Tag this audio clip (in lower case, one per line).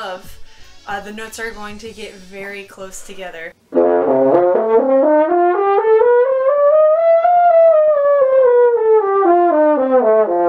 playing french horn